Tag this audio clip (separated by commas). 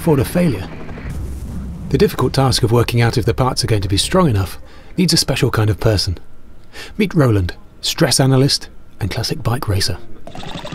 Speech, Vehicle, Music